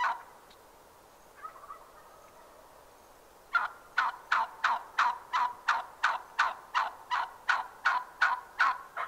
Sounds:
gobble, fowl, bird vocalization, bird, turkey

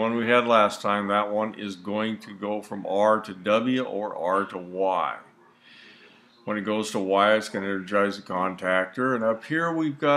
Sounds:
speech

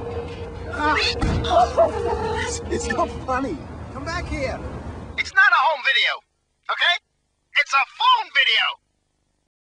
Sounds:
speech, pets, cat

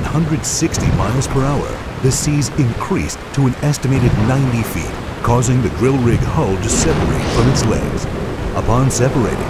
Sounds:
speech, boom

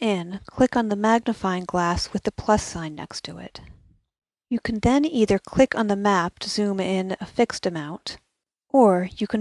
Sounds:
speech

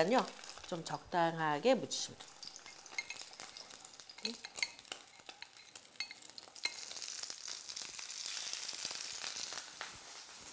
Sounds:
frying (food), stir, sizzle

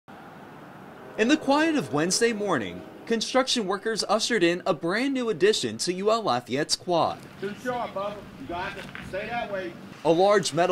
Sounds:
vehicle, speech

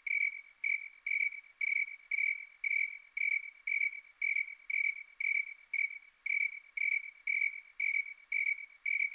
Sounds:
cricket, insect

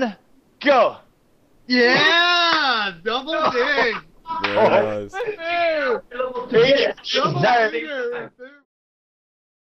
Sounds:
speech

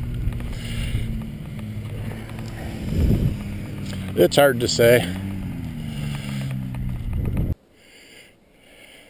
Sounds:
vehicle, speech

